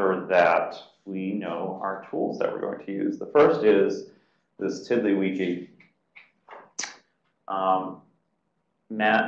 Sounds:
speech

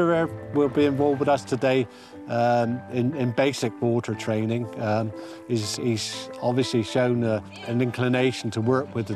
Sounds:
music, speech

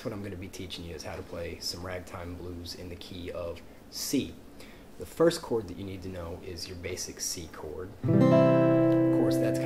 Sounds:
acoustic guitar, speech, music, guitar, musical instrument

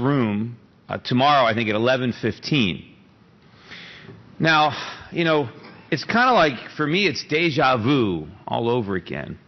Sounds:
narration, man speaking, speech

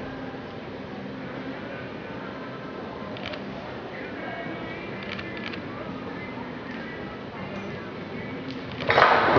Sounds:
clip-clop, music, speech, horse

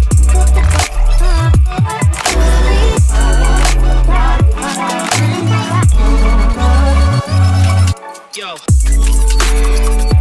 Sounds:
electronic dance music, music, electronic music

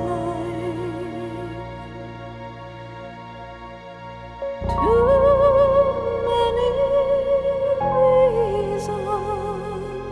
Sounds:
music

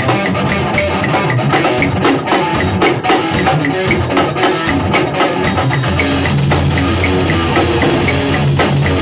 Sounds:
drum kit, musical instrument, heavy metal, music, drum

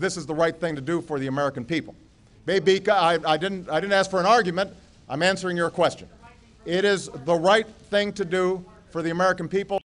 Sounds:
male speech, speech, monologue

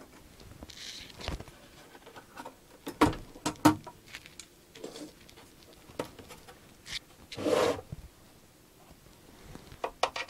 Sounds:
inside a small room

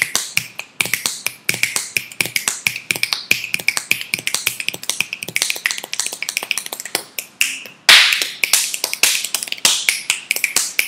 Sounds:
people finger snapping

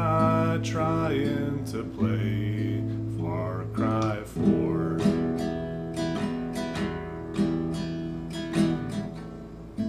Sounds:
strum, music

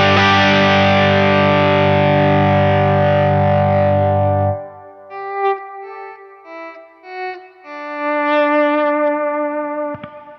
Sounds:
guitar, musical instrument, music, plucked string instrument

